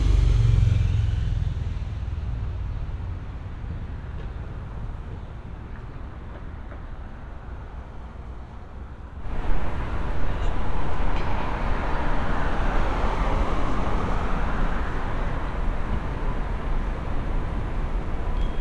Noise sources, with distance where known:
medium-sounding engine, near

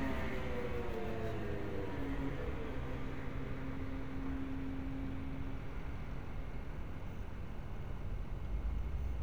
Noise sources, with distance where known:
medium-sounding engine

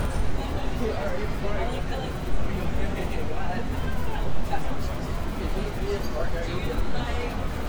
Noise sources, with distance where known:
person or small group talking, near

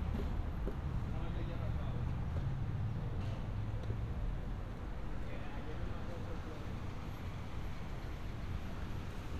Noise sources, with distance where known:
person or small group talking, far

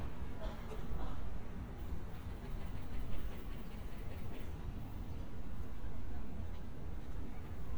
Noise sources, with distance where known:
unidentified human voice, far

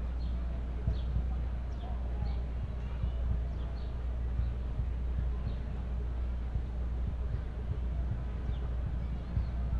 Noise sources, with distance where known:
music from an unclear source, far

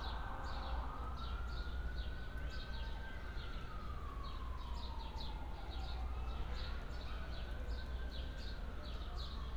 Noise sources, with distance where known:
siren

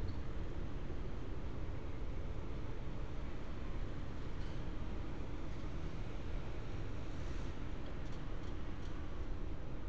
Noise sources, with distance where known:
medium-sounding engine

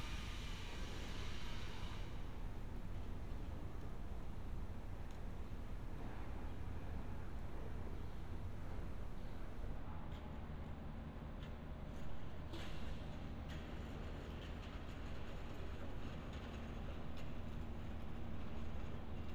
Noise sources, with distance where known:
background noise

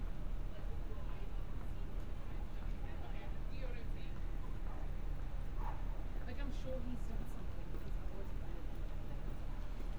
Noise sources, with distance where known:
person or small group talking, far

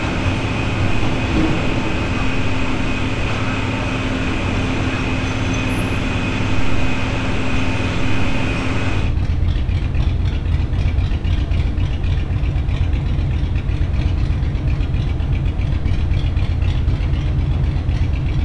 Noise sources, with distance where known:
engine of unclear size

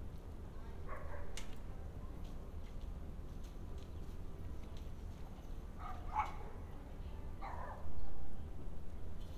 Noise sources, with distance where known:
dog barking or whining, far

